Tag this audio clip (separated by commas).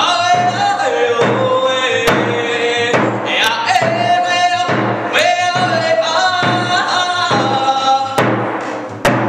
Music